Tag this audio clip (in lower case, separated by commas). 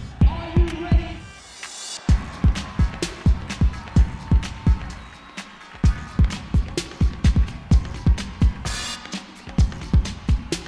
speech, music, house music